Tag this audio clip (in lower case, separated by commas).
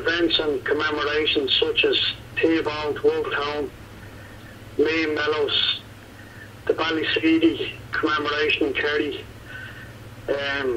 speech